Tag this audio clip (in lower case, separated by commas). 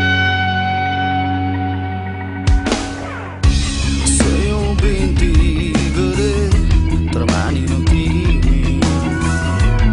rock and roll, dance music, music, punk rock